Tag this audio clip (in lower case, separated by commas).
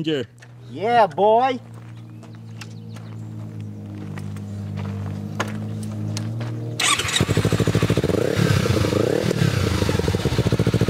speech, motorcycle